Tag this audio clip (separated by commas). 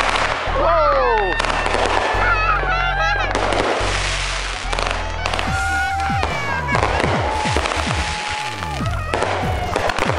outside, urban or man-made, Fireworks, Speech, Music